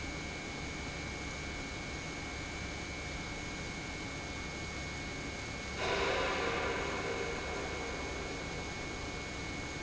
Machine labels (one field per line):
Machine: pump